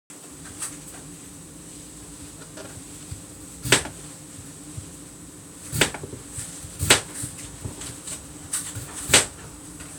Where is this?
in a kitchen